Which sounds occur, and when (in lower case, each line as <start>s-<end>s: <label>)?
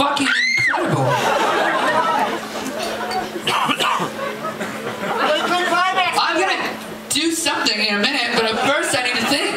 0.0s-0.4s: man speaking
0.0s-9.5s: crowd
0.0s-9.5s: mechanisms
0.2s-0.8s: shout
0.8s-1.2s: man speaking
1.1s-2.5s: laughter
2.7s-3.3s: squeal
3.4s-4.1s: cough
5.0s-6.4s: laughter
5.1s-6.7s: man speaking
7.1s-9.5s: man speaking